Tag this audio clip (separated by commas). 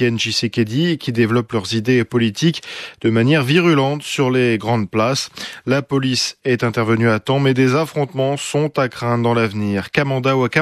Speech